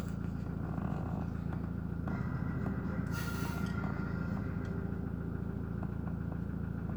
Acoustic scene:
car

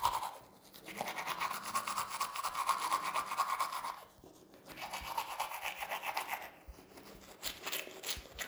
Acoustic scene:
restroom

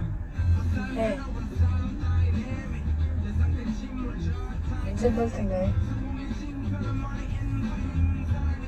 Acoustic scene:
car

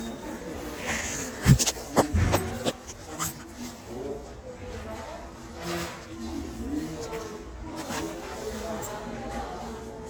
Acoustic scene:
crowded indoor space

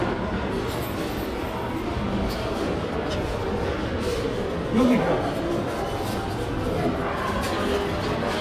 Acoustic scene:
crowded indoor space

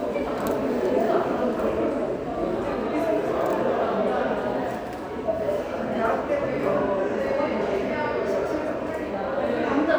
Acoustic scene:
subway station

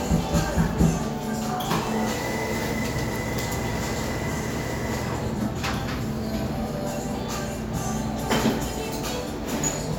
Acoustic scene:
cafe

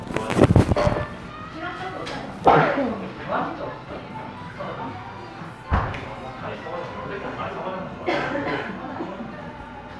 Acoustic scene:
cafe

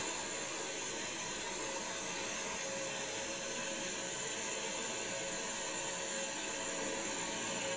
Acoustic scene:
car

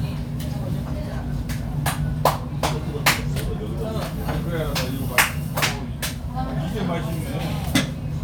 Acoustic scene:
crowded indoor space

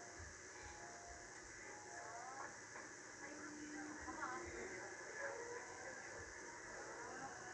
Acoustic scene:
subway train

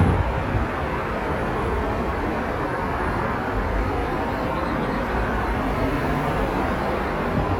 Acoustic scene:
street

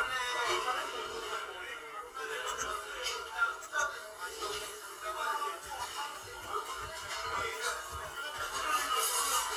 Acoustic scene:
crowded indoor space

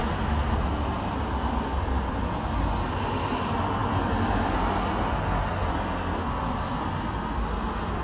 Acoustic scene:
street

